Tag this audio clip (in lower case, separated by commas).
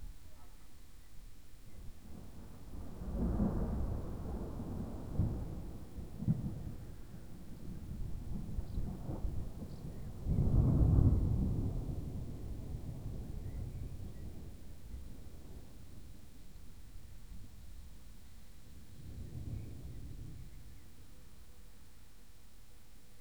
thunder, thunderstorm